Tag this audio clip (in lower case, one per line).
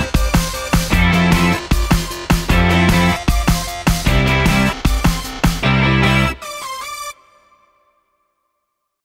music